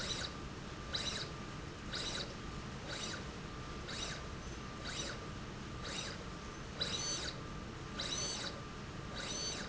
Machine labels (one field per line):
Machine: slide rail